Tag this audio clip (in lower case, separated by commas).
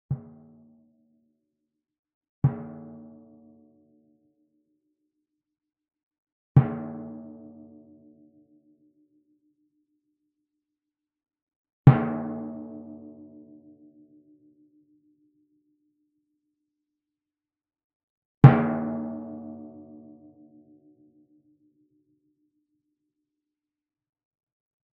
music, percussion, musical instrument, drum